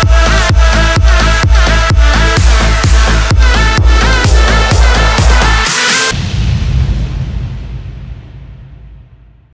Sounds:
Music

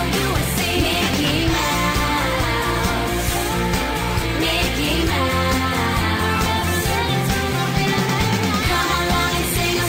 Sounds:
Music

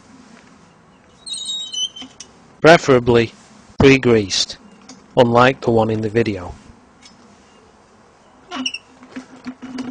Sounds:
Speech, outside, rural or natural

